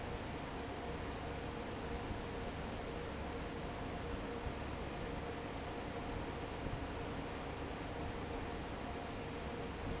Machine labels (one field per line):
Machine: fan